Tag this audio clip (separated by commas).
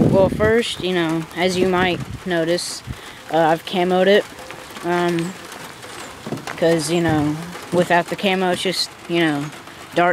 Speech